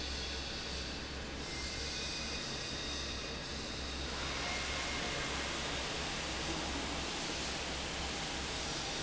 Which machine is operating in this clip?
fan